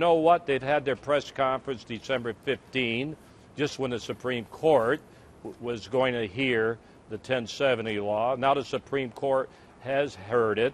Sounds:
Speech

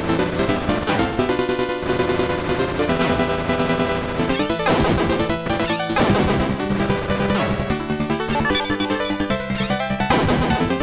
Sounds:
Music

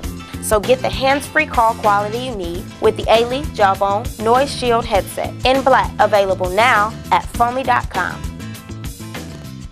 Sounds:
Speech, Music

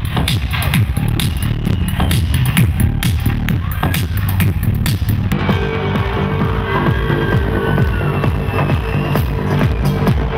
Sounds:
Music

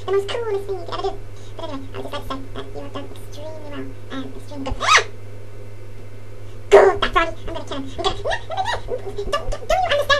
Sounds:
Speech

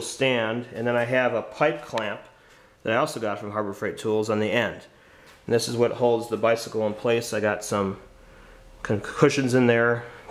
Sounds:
Speech

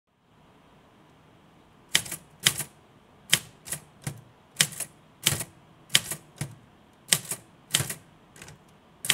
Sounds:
typing on typewriter

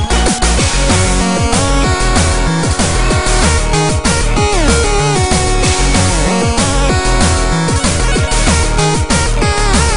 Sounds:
Music

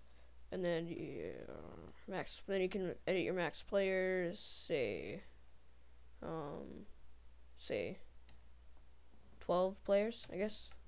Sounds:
Speech

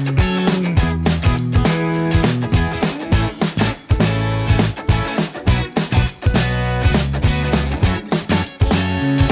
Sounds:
Music

